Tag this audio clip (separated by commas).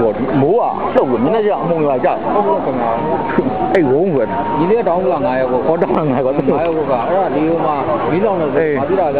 Speech